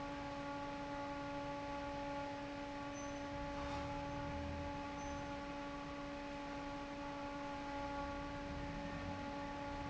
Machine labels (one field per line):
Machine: fan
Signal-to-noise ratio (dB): 6 dB